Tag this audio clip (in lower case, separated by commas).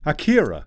speech, human voice, man speaking